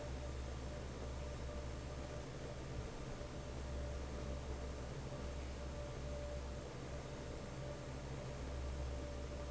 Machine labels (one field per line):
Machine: fan